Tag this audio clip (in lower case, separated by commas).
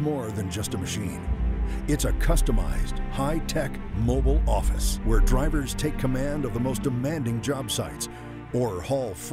music, speech